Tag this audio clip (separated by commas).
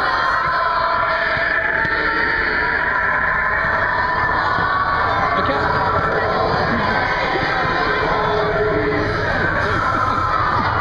Speech, Music